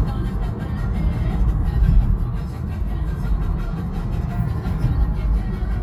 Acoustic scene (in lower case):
car